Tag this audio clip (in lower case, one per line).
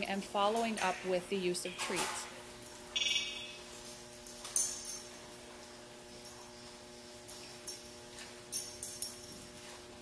speech